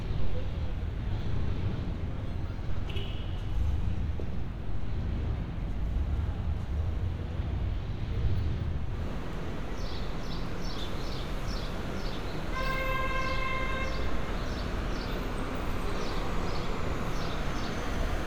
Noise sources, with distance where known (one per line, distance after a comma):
engine of unclear size
car horn